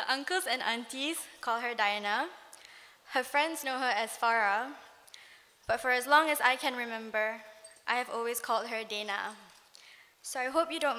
A young woman gives a speech